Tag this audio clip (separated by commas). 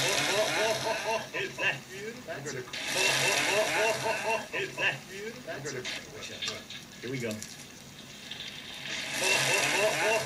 inside a small room, Speech